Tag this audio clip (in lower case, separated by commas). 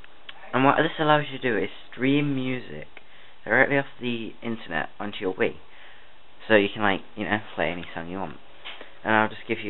speech